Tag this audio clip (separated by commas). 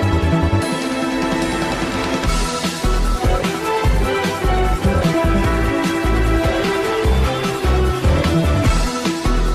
Music, Dance music, Theme music